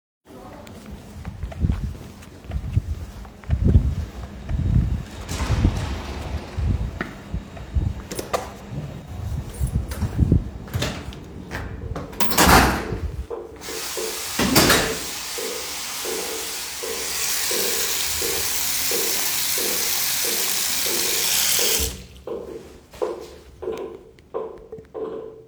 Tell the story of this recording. I moved out of my workplace, to hallway. I went to the bathroom and washed my face with water